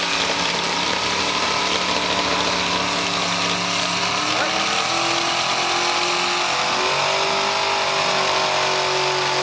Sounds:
Vehicle, Truck

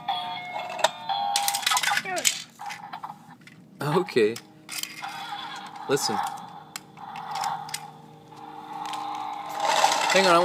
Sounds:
Car

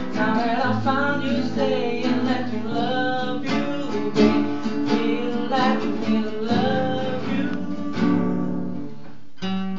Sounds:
Musical instrument, Singing, Guitar

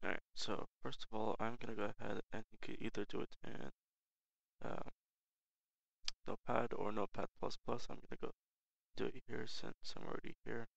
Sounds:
Speech

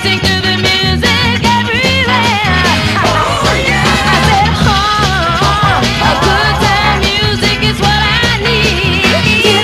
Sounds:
Exciting music, Music

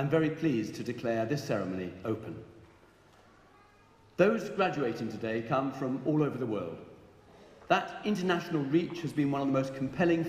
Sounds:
Speech, man speaking

